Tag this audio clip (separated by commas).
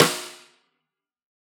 Drum, Percussion, Musical instrument, Music, Snare drum